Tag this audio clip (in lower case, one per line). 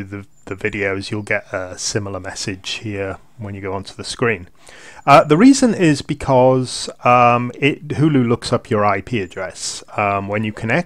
speech